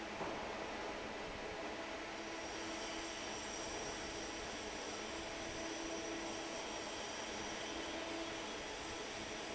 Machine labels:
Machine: fan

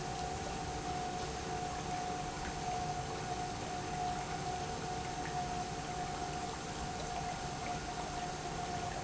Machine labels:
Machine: pump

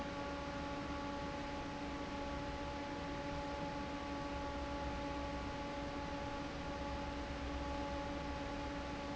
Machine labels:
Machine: fan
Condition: normal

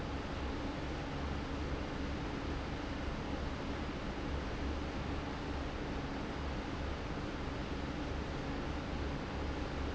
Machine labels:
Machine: fan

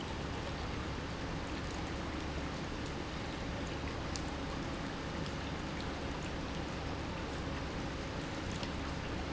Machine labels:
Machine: pump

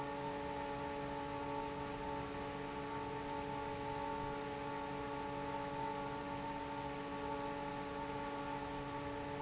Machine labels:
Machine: fan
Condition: normal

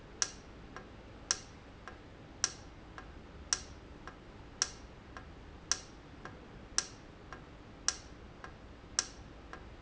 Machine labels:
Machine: valve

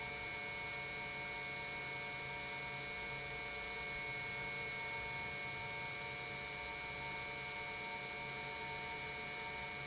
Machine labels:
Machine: pump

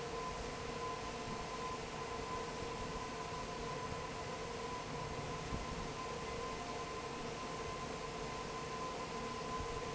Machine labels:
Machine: fan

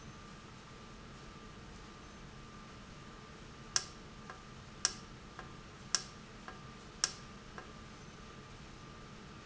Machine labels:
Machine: valve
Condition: normal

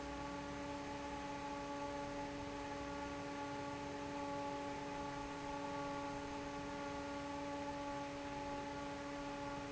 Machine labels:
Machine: fan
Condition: normal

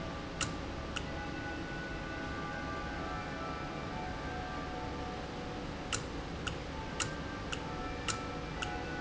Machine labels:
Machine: valve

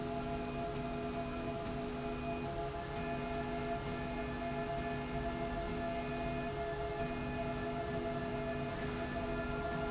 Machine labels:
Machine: slide rail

